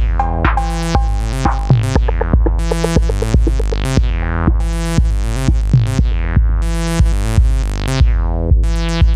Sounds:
Music, Electronic music

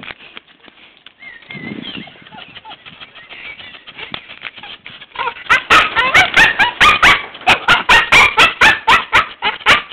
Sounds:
Bow-wow, Yip

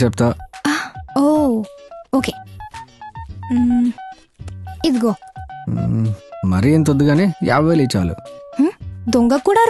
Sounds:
Music, Speech

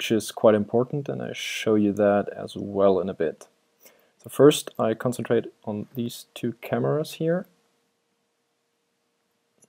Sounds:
Speech

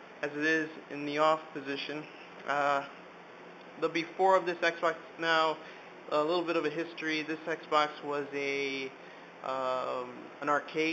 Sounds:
Speech

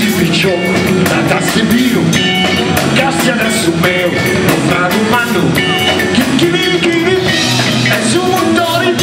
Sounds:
Blues, Music

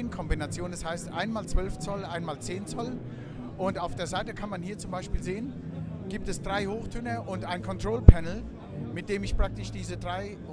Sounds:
Music, Speech

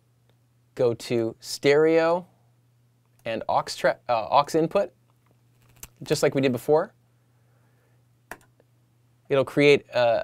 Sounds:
Speech

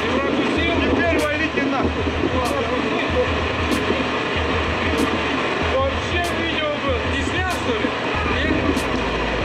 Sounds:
Speech, Music

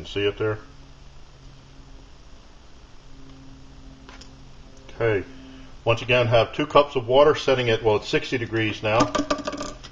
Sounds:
Speech

